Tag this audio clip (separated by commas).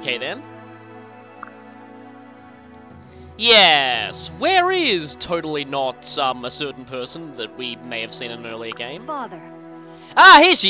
Speech, Music